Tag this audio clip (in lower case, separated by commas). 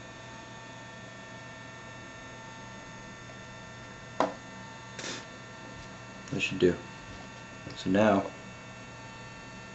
speech